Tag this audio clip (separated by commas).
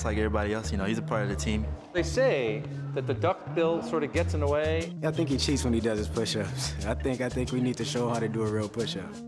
Music, Speech